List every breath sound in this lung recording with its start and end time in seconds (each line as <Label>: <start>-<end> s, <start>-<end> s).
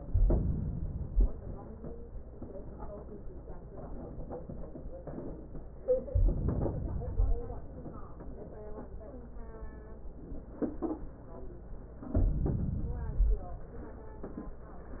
Inhalation: 0.00-1.25 s, 6.09-7.52 s, 12.12-13.44 s